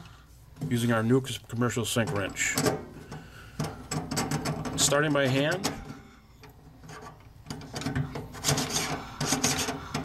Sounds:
Speech

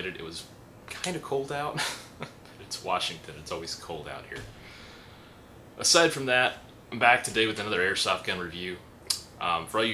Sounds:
Speech

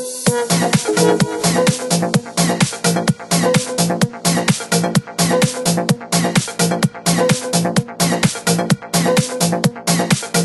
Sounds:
Music

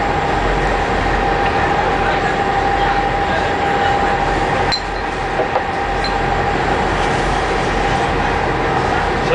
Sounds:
Speech

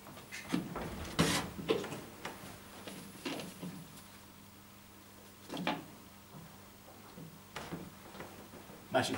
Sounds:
Drawer open or close, Speech

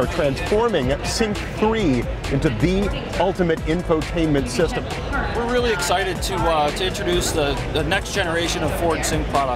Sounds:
Music, Speech

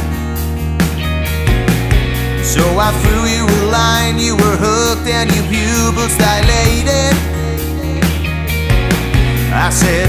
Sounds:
Music

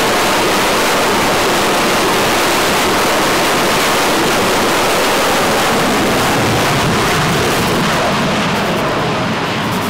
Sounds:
Ocean, ocean burbling, surf

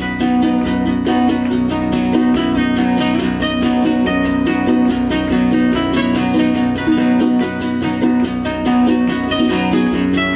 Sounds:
Guitar, Music, Musical instrument, Plucked string instrument, Ukulele

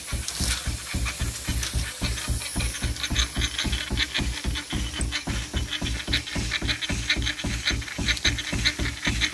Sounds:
Idling, Engine

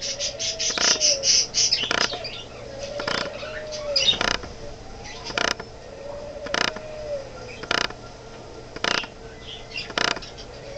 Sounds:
Coo, Bird

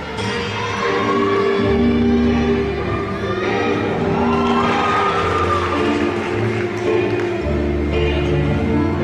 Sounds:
Music

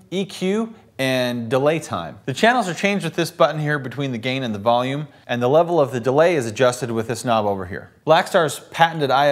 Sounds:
Speech

